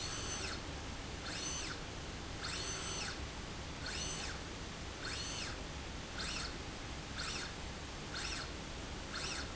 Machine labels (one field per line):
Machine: slide rail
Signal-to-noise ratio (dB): 0 dB